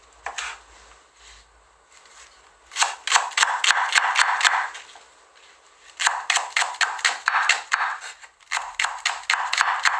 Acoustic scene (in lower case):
kitchen